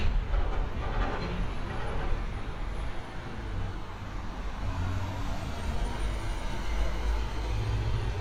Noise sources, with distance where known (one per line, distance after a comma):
unidentified impact machinery, near